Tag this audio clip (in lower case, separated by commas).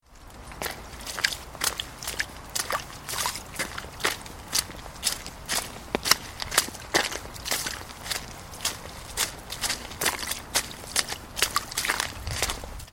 liquid, splash